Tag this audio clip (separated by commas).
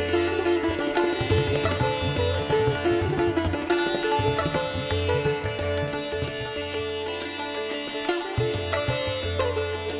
playing sitar